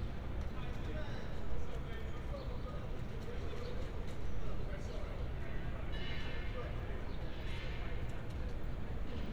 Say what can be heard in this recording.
person or small group talking